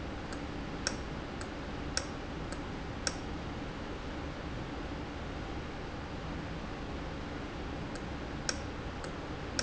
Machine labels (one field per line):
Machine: valve